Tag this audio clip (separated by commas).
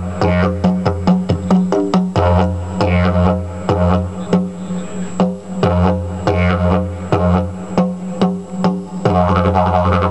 Speech, Didgeridoo, Music